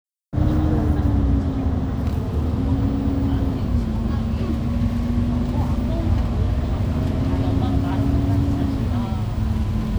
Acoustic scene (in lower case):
bus